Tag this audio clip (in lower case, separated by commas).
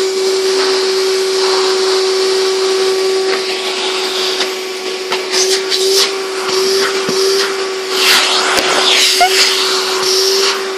vacuum cleaner, inside a small room